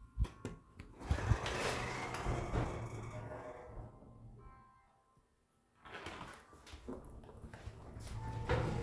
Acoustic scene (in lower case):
elevator